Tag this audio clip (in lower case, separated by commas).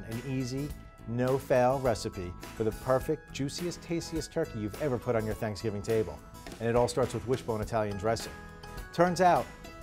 music, speech